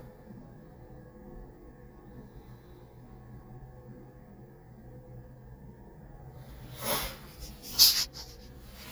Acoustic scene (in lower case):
elevator